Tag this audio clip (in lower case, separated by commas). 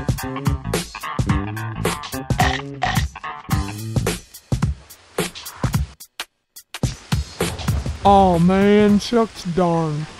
drum machine, sampler